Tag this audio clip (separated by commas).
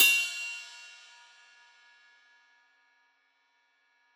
Cymbal, Musical instrument, Music, Hi-hat, Percussion